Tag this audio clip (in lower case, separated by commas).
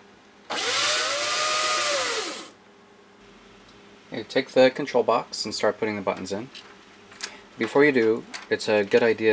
inside a small room, speech